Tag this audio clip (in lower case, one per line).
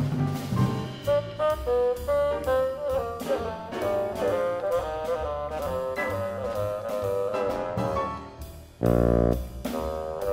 playing bassoon